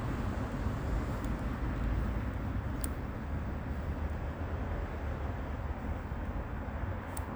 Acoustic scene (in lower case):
residential area